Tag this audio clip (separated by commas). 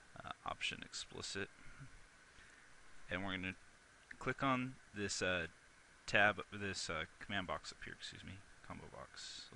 Speech